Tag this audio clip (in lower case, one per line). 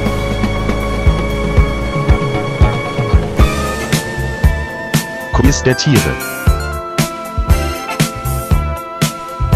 speech
music
background music
funk